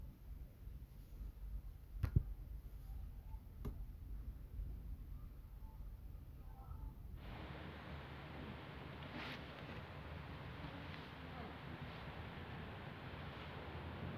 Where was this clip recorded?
in a residential area